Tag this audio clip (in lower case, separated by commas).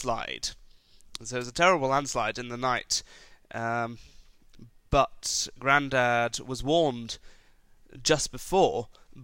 monologue, speech, male speech